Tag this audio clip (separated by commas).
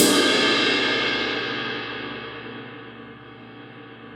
Music, Crash cymbal, Musical instrument, Percussion, Cymbal